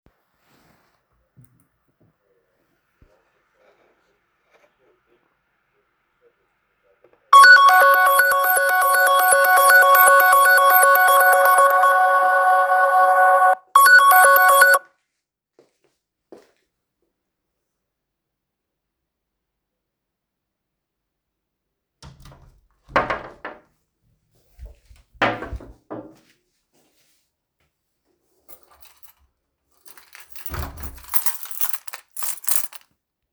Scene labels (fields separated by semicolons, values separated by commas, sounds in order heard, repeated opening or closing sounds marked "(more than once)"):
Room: living room; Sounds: phone ringing, footsteps, wardrobe or drawer, door, keys